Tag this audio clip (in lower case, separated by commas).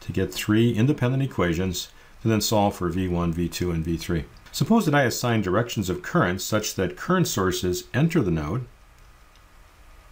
speech